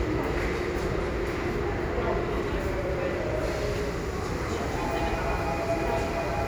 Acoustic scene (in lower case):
subway station